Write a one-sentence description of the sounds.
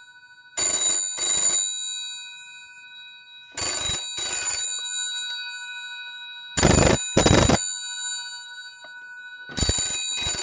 A telephone rings several times over and over